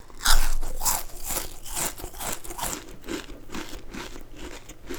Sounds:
mastication

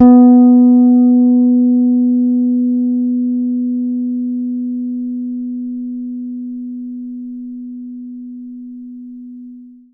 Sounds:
Plucked string instrument, Bass guitar, Guitar, Music, Musical instrument

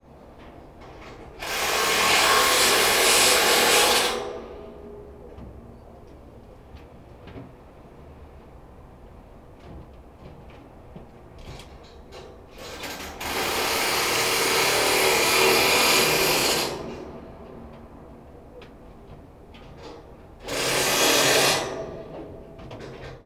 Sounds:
Drill, Power tool, Tools

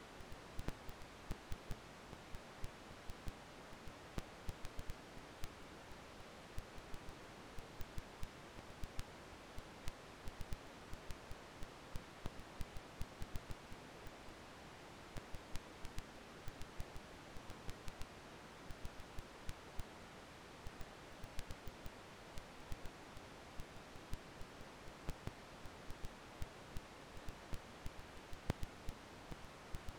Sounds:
Crackle

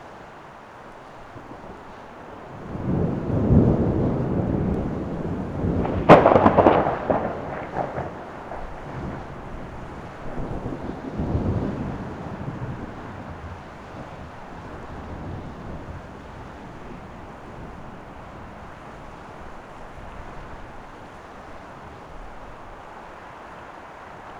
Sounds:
Thunderstorm, Thunder

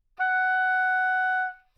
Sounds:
Wind instrument, Musical instrument, Music

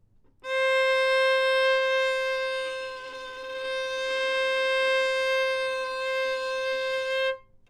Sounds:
Bowed string instrument, Musical instrument, Music

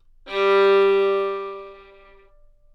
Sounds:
Bowed string instrument, Music, Musical instrument

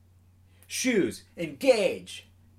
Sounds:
Human voice, Speech, Male speech

